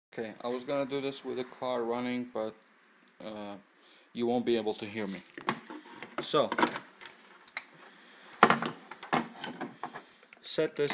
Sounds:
speech, inside a small room

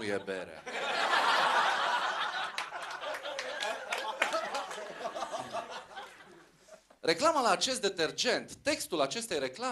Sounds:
speech

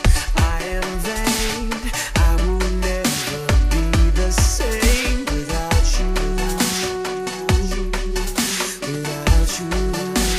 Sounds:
dubstep, music

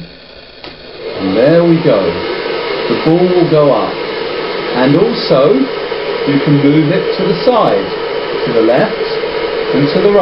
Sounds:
speech

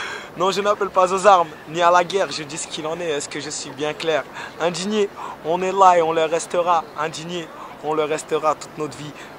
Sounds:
speech

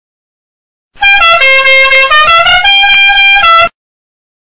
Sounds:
vehicle horn

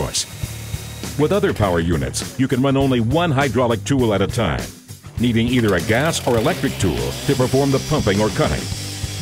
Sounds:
speech, music

